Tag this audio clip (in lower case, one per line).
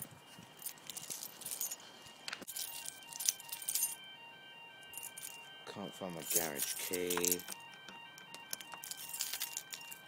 speech